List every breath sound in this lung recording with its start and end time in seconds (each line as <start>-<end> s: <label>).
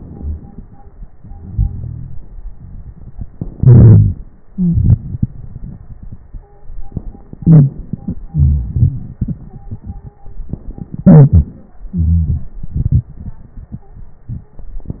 0.00-1.13 s: inhalation
0.00-1.13 s: crackles
1.16-3.34 s: exhalation
1.16-3.34 s: crackles
3.35-4.49 s: inhalation
3.58-4.26 s: wheeze
4.47-4.75 s: wheeze
4.47-7.23 s: exhalation
6.34-6.75 s: stridor
7.25-8.28 s: inhalation
7.39-7.77 s: wheeze
8.30-10.82 s: exhalation
8.30-10.82 s: crackles
10.85-11.80 s: inhalation
11.03-11.54 s: wheeze
11.81-14.60 s: exhalation
11.95-12.47 s: wheeze